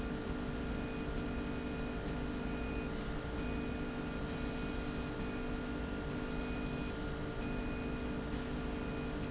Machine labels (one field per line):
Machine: slide rail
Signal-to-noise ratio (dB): -6 dB